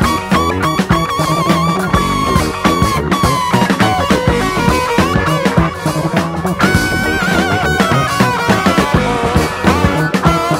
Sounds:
Music

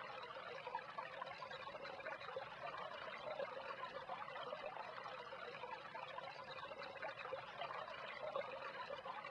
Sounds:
Pour

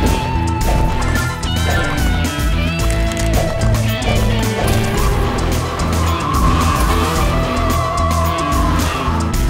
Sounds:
Music

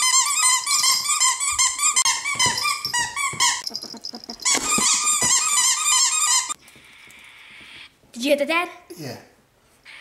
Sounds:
ferret dooking

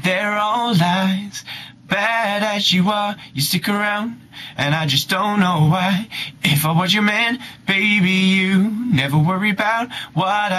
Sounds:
Male singing

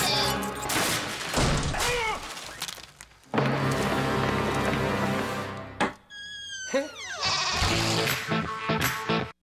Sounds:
Sheep, Music, Bleat

